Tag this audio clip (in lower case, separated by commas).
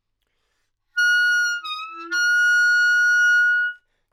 wind instrument, musical instrument, music